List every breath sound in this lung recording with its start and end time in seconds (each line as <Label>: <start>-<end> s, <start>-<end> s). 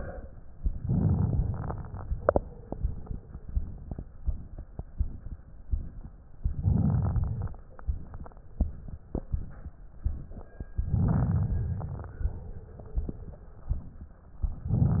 Inhalation: 0.85-1.73 s, 6.58-7.46 s, 11.01-11.88 s
Crackles: 0.85-1.73 s, 6.58-7.46 s, 11.01-11.88 s